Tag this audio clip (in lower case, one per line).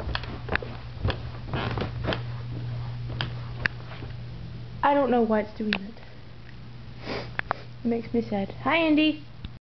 speech